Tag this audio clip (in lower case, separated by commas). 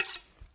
domestic sounds, cutlery